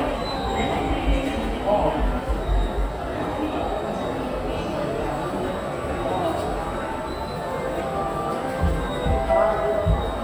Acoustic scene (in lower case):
subway station